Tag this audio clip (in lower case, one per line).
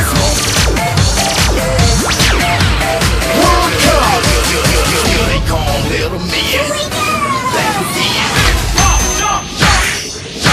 music